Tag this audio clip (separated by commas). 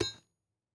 Tools